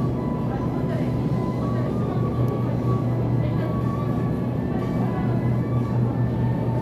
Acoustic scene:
crowded indoor space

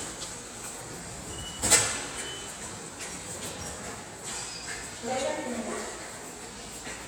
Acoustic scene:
subway station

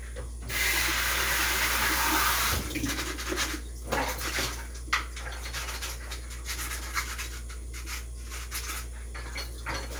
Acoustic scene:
kitchen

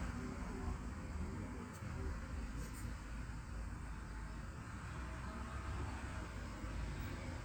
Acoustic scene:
residential area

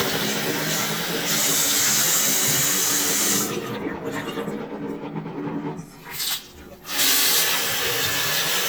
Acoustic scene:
restroom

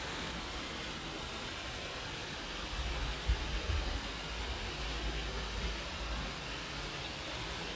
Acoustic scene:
park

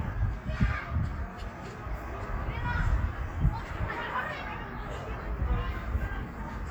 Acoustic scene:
park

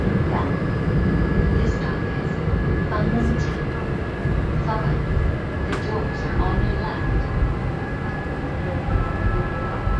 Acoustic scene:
subway train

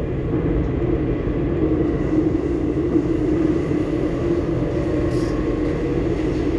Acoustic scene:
subway train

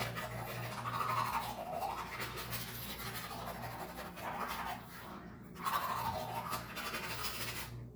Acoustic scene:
restroom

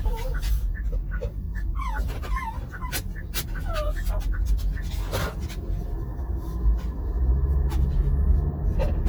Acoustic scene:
car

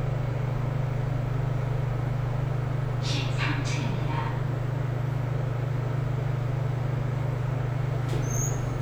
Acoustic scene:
elevator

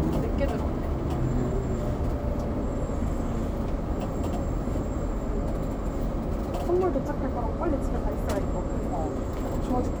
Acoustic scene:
bus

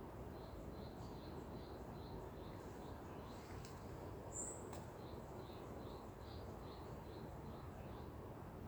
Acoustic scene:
park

